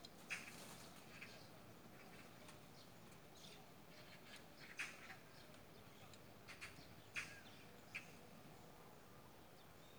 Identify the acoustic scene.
park